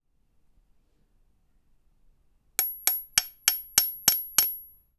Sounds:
Hammer, Tools

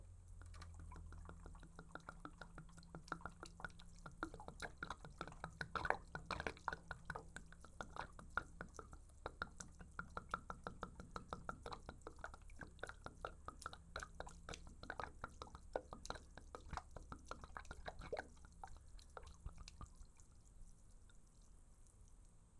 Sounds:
Water, Gurgling, Liquid

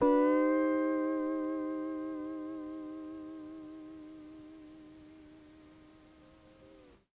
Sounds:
Plucked string instrument, Music, Musical instrument, Guitar

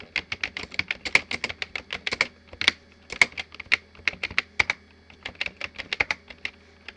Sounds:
Typing, Computer keyboard, home sounds

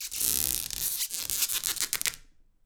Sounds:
Squeak

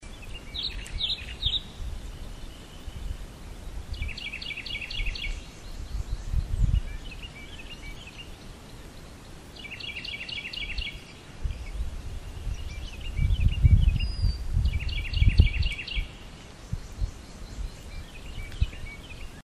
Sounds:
Animal, Wild animals, Bird, bird song

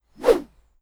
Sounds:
swoosh

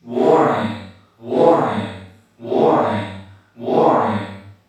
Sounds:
Human voice, Alarm

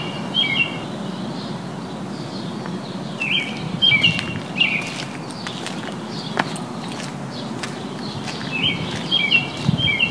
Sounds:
Wild animals, Animal, Bird, bird song

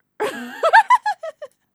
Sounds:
Laughter, Human voice

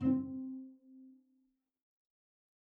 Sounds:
Music, Musical instrument, Bowed string instrument

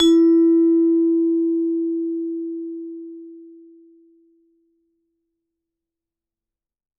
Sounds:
Percussion, Musical instrument, Music, Mallet percussion

